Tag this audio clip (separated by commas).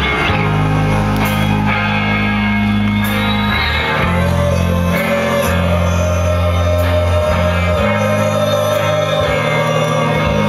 Music